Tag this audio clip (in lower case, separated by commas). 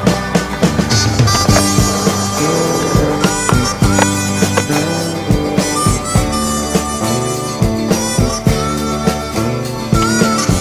music, skateboard